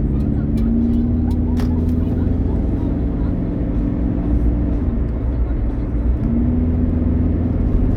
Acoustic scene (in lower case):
car